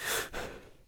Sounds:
Breathing, Respiratory sounds

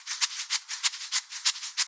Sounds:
Rattle

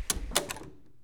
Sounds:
Door, home sounds

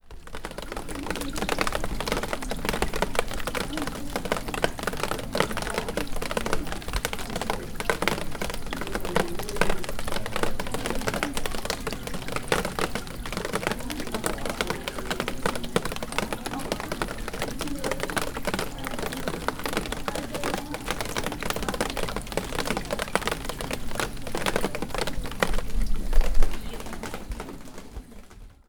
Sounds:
Liquid, Drip

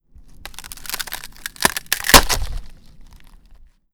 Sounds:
Wood

